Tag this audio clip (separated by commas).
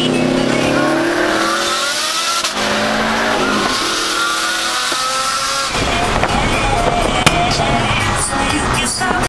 Vehicle, Car, Medium engine (mid frequency), revving, Music